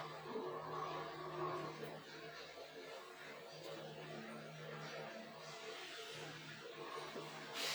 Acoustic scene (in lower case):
elevator